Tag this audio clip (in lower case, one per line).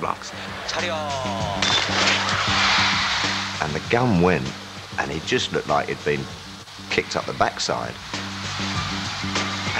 speech
music
male speech